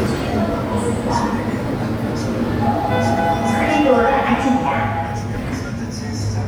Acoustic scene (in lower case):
subway station